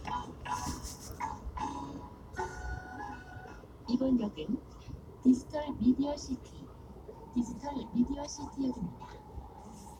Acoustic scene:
subway train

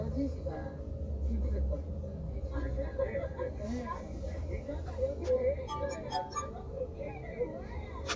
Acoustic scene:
car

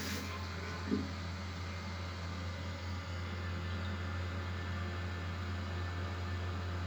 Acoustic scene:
restroom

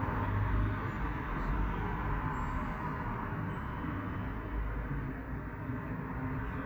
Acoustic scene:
street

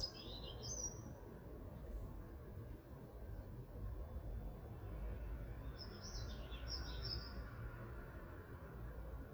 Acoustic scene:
park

